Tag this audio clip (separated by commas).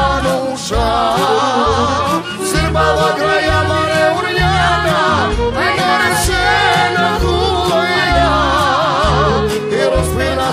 Music